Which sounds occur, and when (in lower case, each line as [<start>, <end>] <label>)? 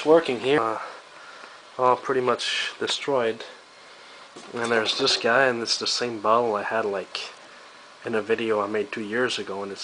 [0.00, 0.81] man speaking
[0.00, 9.83] background noise
[0.77, 1.74] breathing
[1.74, 3.52] man speaking
[3.39, 4.36] breathing
[4.32, 4.53] generic impact sounds
[4.57, 7.37] man speaking
[8.01, 9.83] man speaking